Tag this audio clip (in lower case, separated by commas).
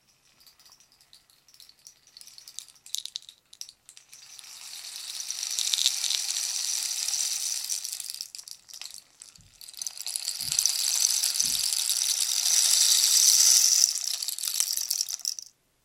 musical instrument, percussion, music, rattle (instrument)